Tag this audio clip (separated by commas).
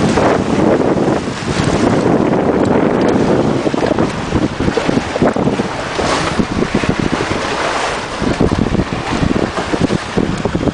sailing ship, Wind, Wind noise (microphone), Boat